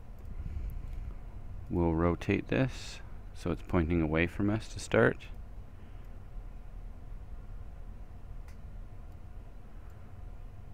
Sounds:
speech

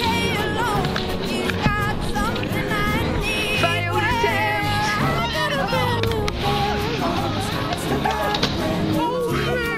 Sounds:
skateboard

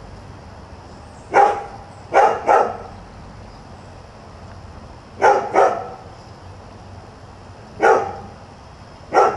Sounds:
yip

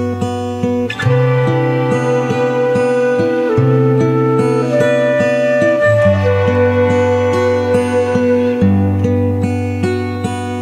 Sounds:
music

